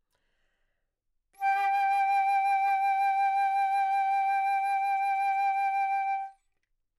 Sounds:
musical instrument
wind instrument
music

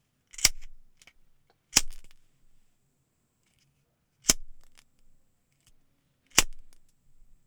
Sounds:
fire

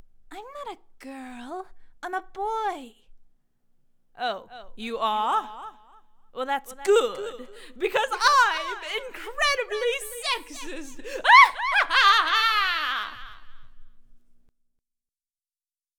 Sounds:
laughter
human voice

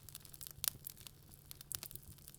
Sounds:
fire
crackle

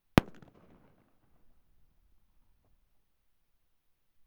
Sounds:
explosion
fireworks

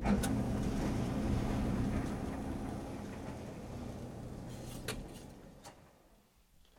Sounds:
engine

